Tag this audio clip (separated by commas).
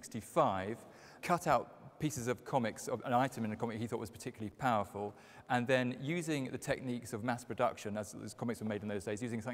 Speech